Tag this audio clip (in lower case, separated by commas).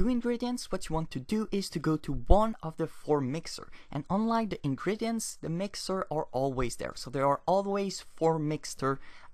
speech synthesizer